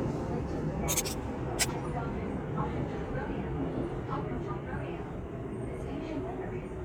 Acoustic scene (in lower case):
subway train